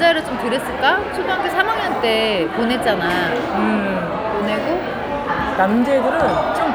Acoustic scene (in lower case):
crowded indoor space